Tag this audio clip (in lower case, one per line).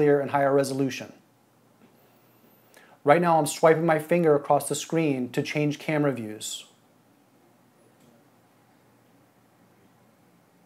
speech